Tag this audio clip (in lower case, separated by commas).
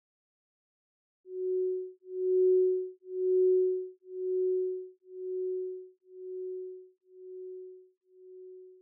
glass